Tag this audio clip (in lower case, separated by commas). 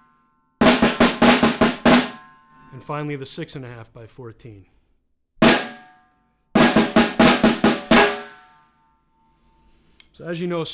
musical instrument, drum roll, speech, music, drum, drum kit, snare drum, bass drum